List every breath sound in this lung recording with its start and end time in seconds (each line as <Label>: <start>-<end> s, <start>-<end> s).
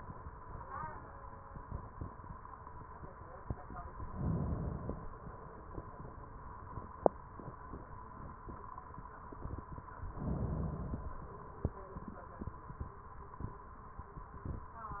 Inhalation: 4.09-5.12 s, 10.09-11.12 s